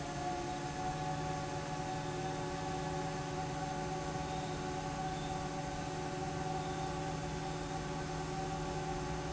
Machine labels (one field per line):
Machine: fan